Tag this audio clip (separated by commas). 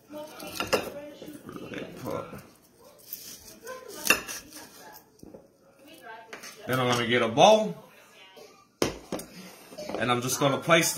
people coughing